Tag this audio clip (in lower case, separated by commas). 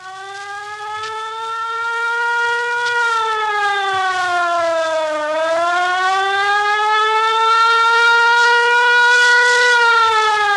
civil defense siren